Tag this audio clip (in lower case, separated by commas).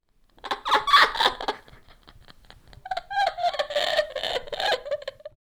human voice, laughter